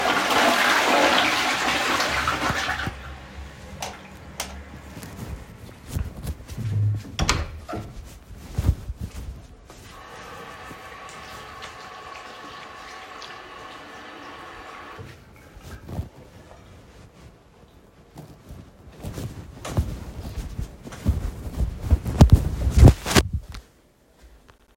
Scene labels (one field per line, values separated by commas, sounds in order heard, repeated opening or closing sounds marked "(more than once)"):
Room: lavatory, bathroom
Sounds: toilet flushing, light switch, door, running water, footsteps